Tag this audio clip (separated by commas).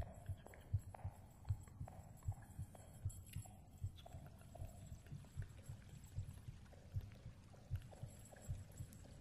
heartbeat